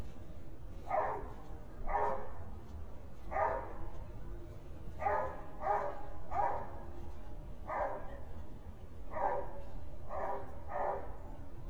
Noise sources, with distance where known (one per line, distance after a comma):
dog barking or whining, near